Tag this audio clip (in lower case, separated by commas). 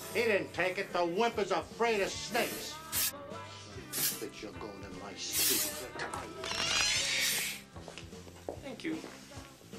inside a small room, music, speech